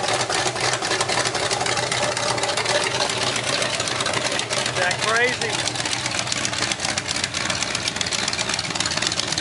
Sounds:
car engine starting

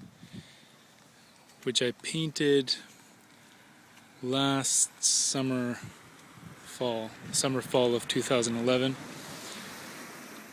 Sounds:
speech

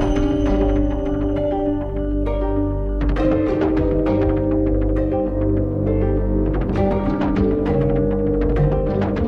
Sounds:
music
theme music

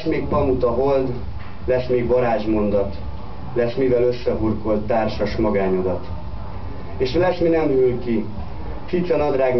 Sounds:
speech

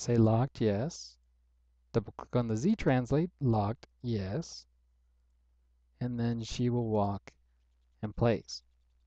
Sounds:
speech

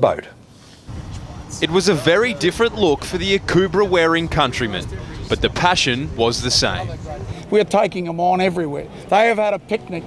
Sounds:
speech

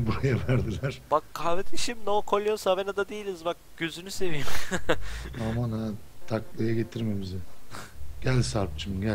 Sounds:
speech

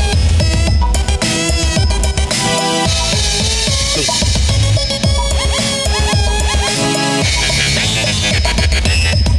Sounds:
music
synthesizer

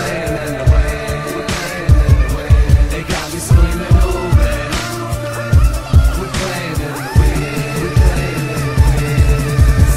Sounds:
music

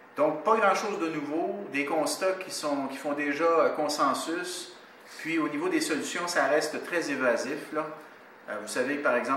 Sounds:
speech

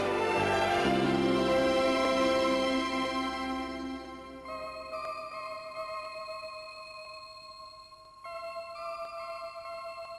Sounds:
music
tender music

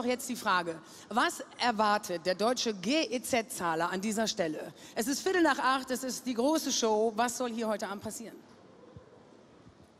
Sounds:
speech

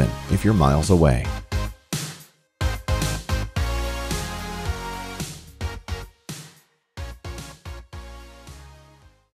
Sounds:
speech
music

